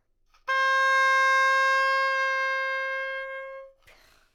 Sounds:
woodwind instrument
music
musical instrument

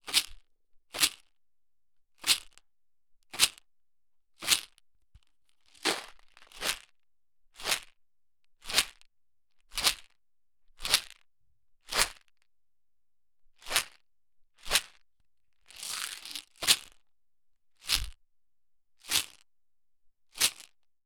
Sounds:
rattle

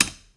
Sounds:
tick

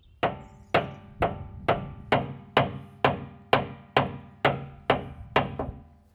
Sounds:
tools

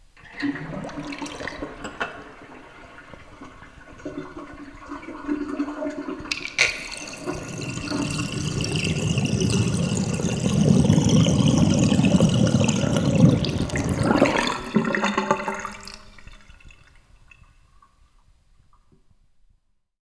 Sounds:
sink (filling or washing)
home sounds

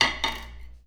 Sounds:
domestic sounds
silverware

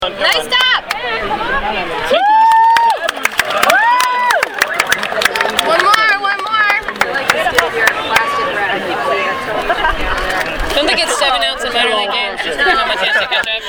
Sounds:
cheering
human group actions

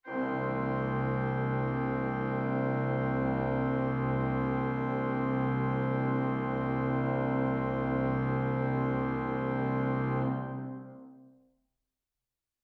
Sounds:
music
organ
musical instrument
keyboard (musical)

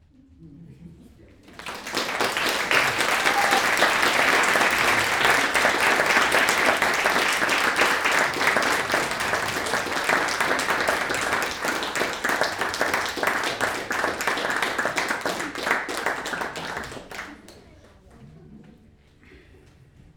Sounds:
applause
human group actions

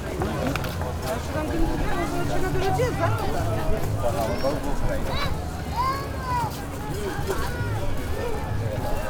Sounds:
conversation
human voice
speech

